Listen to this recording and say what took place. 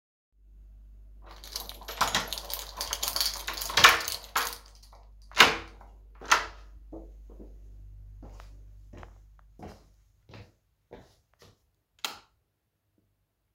I used my key on my door and opened it, then i walked into the living room and turned on the lightswitch